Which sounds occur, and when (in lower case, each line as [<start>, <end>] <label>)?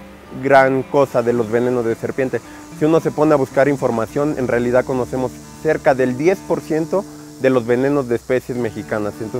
[0.00, 9.35] music
[0.30, 2.37] male speech
[0.90, 9.35] mechanisms
[2.75, 5.29] male speech
[5.62, 6.33] male speech
[6.46, 7.04] male speech
[7.33, 8.14] male speech
[8.29, 9.35] male speech